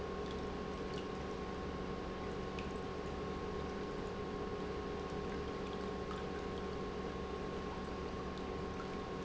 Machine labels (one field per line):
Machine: pump